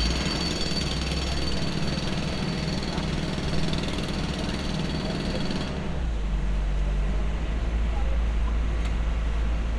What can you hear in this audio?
unidentified impact machinery